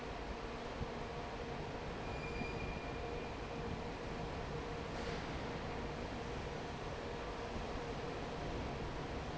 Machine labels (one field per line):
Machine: fan